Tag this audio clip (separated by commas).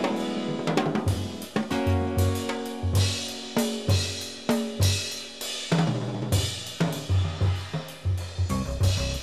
Percussion, Snare drum, Drum, Drum roll, Drum kit, Rimshot, Bass drum